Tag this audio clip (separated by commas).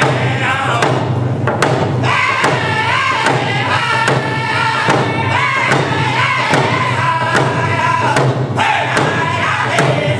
Drum, Music